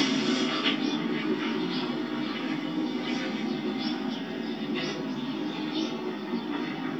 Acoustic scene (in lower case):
park